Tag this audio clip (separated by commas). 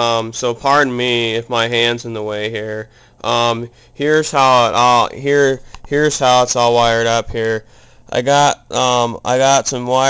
Speech